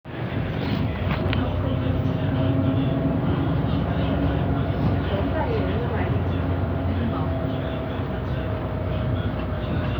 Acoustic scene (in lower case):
bus